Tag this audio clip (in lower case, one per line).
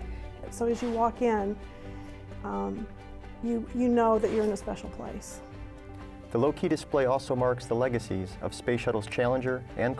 music
speech